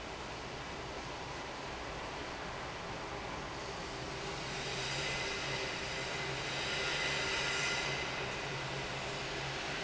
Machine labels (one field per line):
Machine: fan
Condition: abnormal